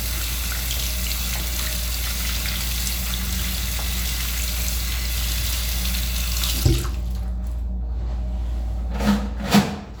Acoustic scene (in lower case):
restroom